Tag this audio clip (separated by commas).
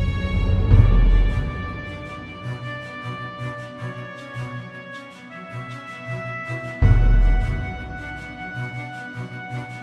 Orchestra, Music